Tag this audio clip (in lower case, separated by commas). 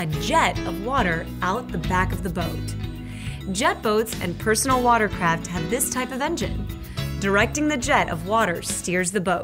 music, speech